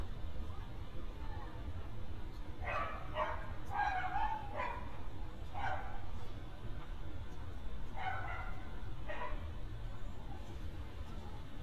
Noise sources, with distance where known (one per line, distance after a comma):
person or small group talking
dog barking or whining, near